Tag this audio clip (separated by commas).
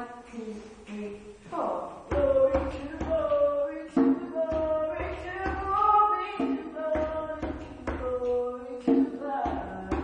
Music, Female singing